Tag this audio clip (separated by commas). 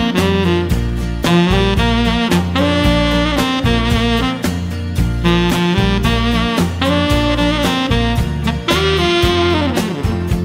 Music